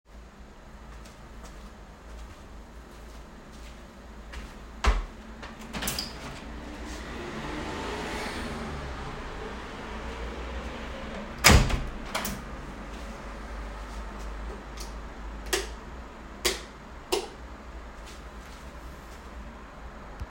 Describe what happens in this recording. I was in my work area and walked toward the door. I opened and closed the door, then turned the light on, off, and on again. After that I walked back toward the computer. In the background traffic noise from the street could be heard.